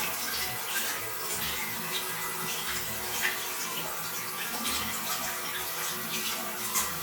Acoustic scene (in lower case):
restroom